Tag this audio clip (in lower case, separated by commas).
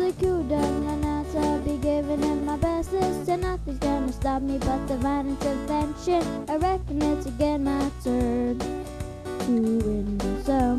music